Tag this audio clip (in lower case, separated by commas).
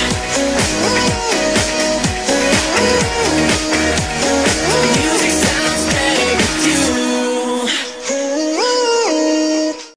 music, exciting music